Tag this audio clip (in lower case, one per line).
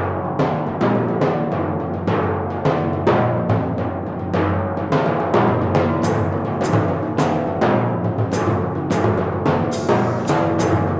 playing tympani